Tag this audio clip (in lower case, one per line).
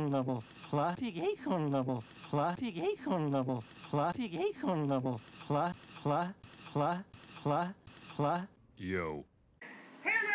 speech